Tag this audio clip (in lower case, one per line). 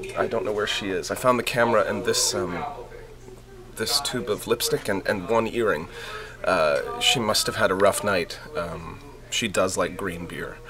speech